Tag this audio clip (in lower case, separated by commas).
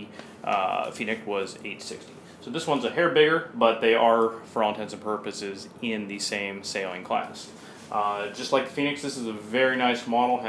speech